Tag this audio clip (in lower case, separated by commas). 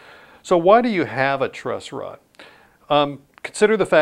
speech